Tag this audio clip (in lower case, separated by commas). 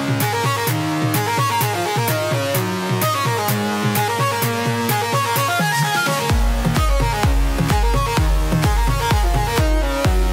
music, funk